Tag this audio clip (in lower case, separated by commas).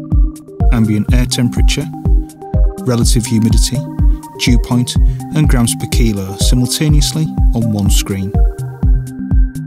music, speech